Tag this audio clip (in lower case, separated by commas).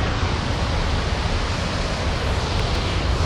boat, vehicle